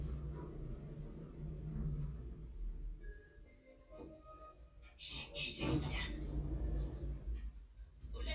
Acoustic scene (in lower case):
elevator